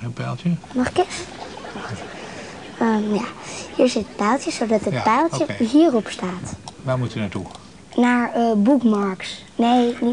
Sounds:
speech

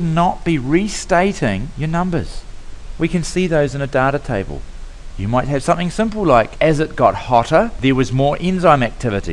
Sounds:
speech

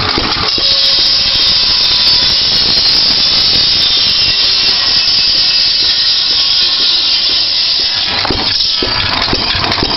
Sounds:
idling

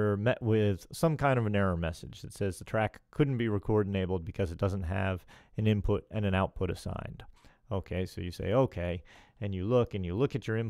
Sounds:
speech

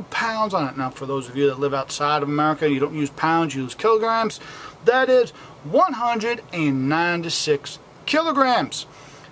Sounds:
speech

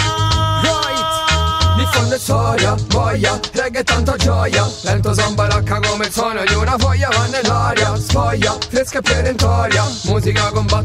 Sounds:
music

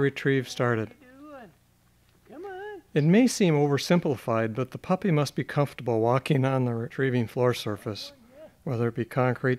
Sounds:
speech

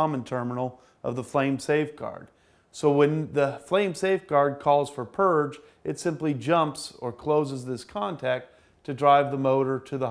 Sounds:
speech

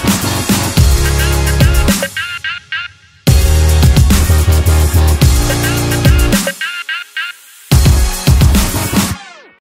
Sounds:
music

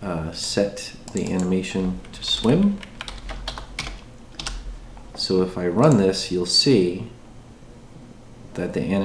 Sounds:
typing
computer keyboard
speech

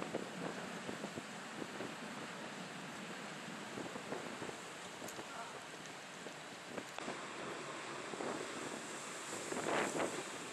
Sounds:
vehicle

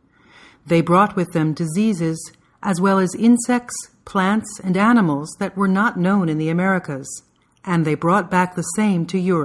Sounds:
narration

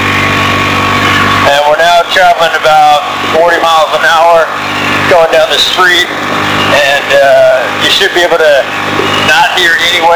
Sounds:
man speaking
speech

